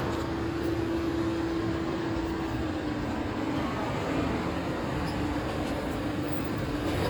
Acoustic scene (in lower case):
street